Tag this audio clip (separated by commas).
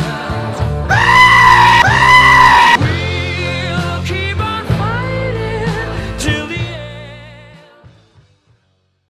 Music